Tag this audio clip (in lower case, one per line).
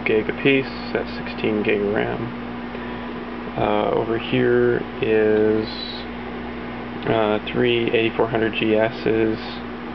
speech